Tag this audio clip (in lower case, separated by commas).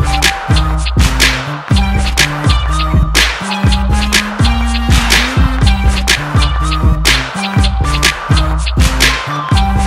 electronic music, music, electronic dance music